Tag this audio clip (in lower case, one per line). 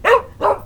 bark
pets
dog
animal